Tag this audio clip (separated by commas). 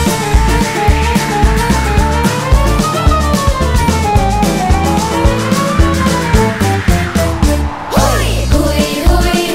Video game music, Music